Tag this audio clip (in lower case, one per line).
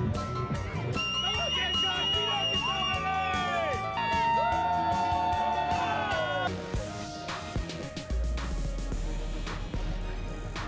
music
speech